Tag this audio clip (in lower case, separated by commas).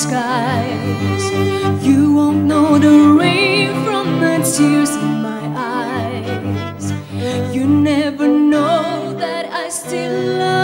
music